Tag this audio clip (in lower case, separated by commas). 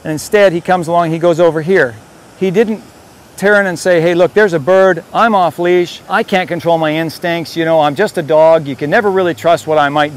speech